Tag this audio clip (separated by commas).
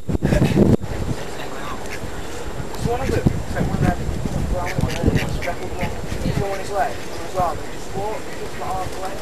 Bird vocalization, Bird